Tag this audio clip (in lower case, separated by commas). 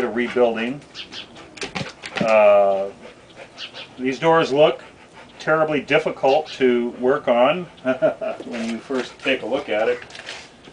speech